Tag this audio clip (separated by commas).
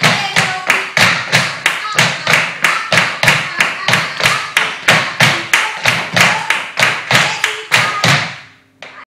Music, Flamenco